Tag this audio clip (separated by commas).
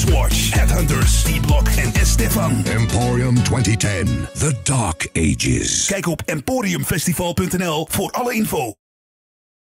Music, Speech